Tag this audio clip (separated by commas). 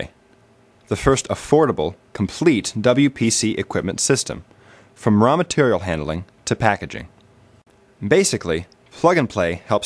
Speech